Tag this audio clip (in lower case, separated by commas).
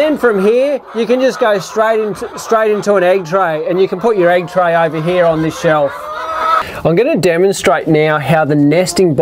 fowl, chicken, cluck